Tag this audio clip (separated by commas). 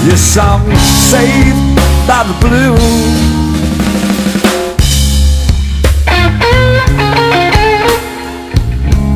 Singing, Music, Blues, Cymbal